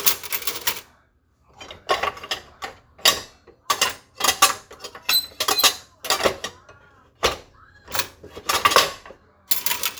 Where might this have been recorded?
in a kitchen